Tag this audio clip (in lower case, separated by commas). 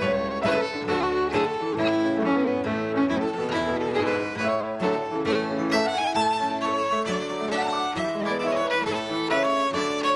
music, musical instrument, violin